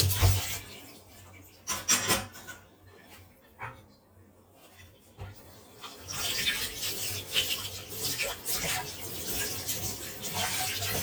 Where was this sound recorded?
in a kitchen